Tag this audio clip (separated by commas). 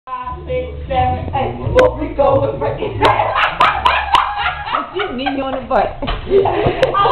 Speech